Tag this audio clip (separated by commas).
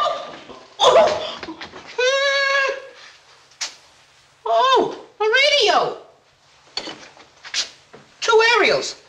Speech